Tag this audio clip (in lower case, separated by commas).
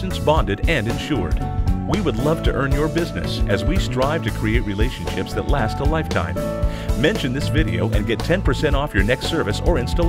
music, speech